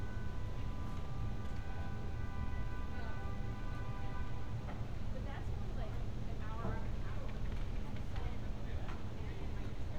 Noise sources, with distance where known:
background noise

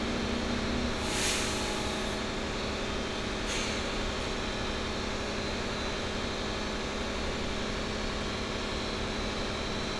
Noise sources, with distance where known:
engine of unclear size

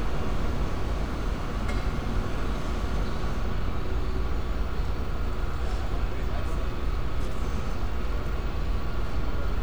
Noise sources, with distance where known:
person or small group talking, far

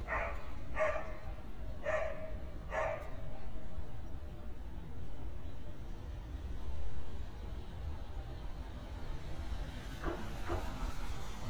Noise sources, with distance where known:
medium-sounding engine, near; dog barking or whining, near

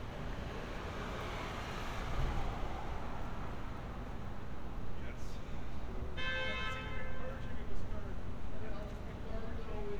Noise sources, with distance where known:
medium-sounding engine, near; car horn, near; person or small group talking, near

